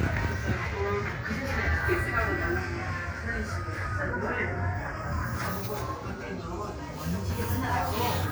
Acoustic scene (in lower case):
crowded indoor space